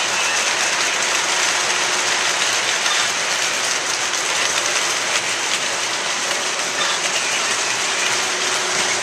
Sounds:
train

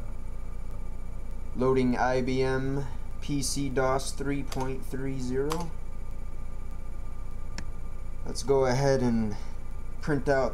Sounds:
typing
speech

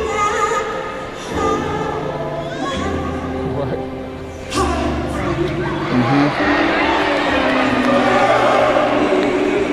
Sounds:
speech
music

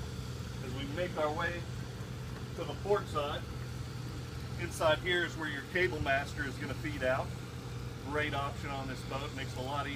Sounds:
speech

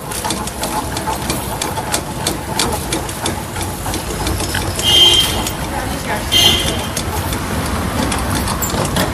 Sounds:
speech
tools

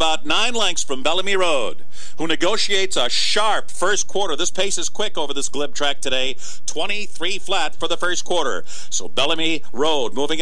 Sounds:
speech

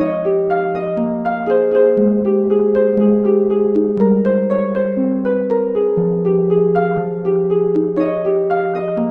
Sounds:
harp
music

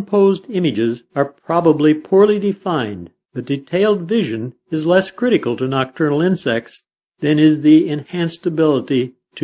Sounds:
speech

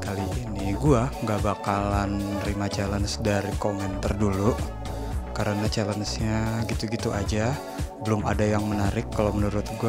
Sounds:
dubstep
speech
music

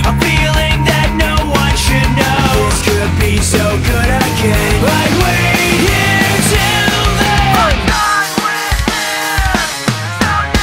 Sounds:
music
sampler

